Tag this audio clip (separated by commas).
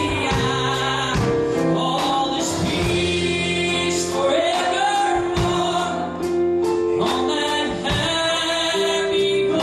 Male singing, Music